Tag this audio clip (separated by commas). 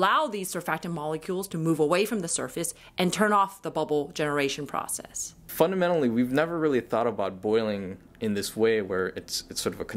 Speech